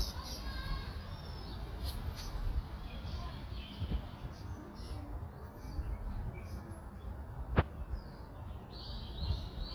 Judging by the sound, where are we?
in a park